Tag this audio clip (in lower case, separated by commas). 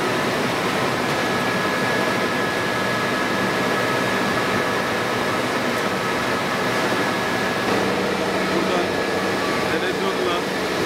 inside a large room or hall, speech